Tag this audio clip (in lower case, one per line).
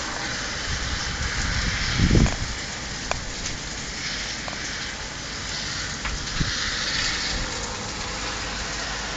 rain on surface